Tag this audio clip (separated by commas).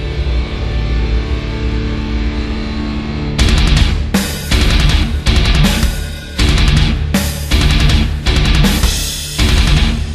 Music